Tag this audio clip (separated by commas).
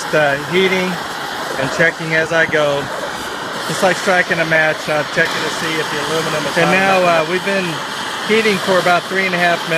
Speech